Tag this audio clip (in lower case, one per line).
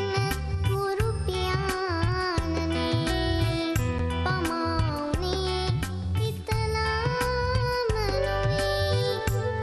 music